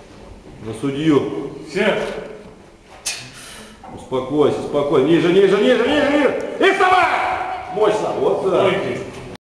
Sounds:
speech

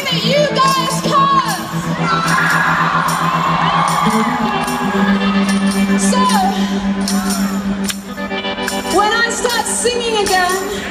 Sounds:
cheering
crowd

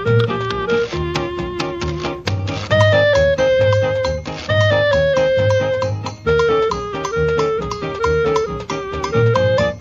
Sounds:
music

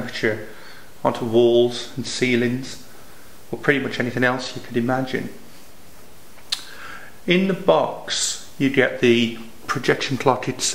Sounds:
radio
speech

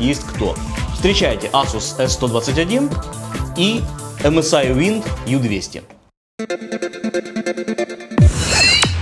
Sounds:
music
speech

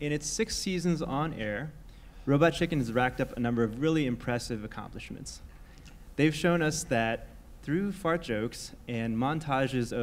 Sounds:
speech

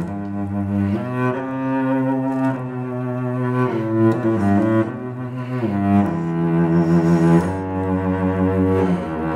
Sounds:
playing cello

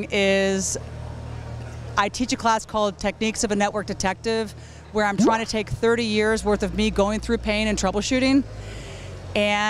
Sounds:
speech

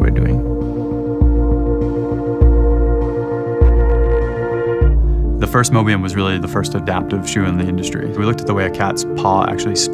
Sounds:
music
speech

